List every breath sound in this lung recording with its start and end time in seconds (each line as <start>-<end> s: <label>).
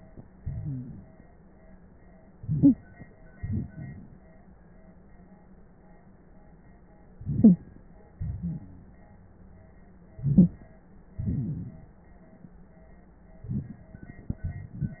0.38-1.37 s: exhalation
0.62-0.90 s: wheeze
2.33-3.08 s: inhalation
2.45-2.76 s: wheeze
3.38-4.20 s: exhalation
7.15-7.96 s: inhalation
7.41-7.58 s: wheeze
8.19-9.00 s: exhalation
8.41-8.60 s: wheeze
10.17-10.78 s: inhalation
10.22-10.48 s: wheeze
11.14-11.86 s: rhonchi
11.16-11.95 s: exhalation